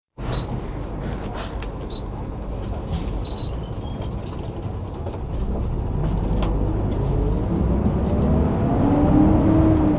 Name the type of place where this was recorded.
bus